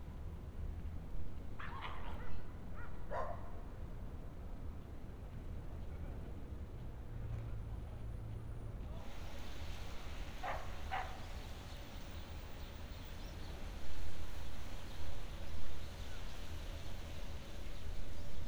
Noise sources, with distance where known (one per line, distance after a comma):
dog barking or whining, far